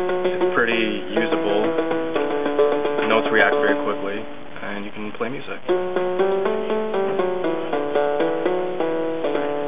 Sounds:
Speech, Music, Harpsichord

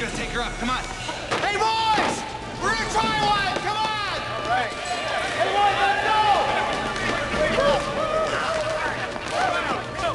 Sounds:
Speech

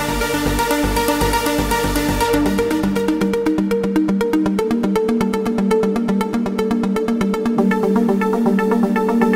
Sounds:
Music

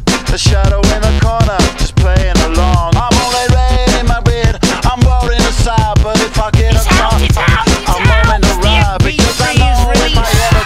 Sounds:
Music

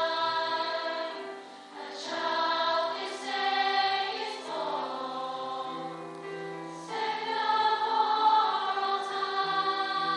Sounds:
Choir, Music

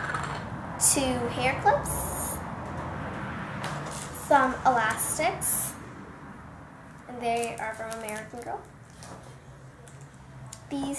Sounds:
inside a small room, Speech

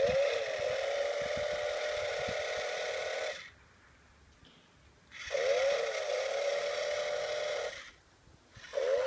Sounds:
Chainsaw

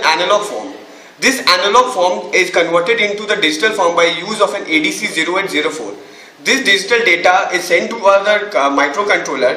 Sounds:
Speech

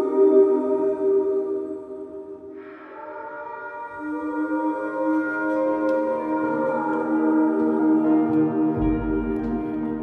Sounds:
Music

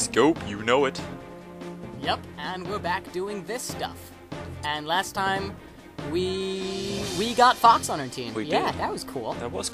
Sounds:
Music, Speech

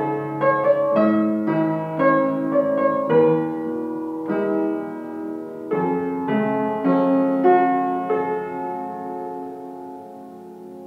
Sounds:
inside a large room or hall, Piano, Keyboard (musical), Music, Musical instrument, Classical music

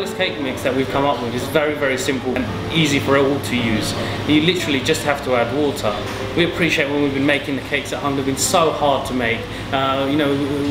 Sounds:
Speech, Music

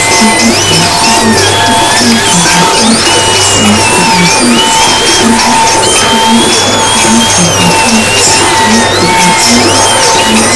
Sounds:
Music, speech noise

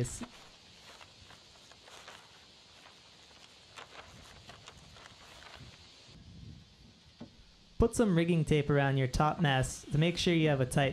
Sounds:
Speech

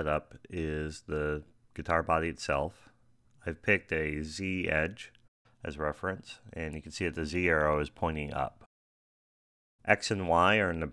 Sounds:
Speech

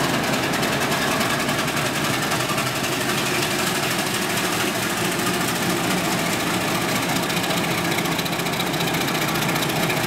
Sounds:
train wagon, Train, Vehicle, Rail transport

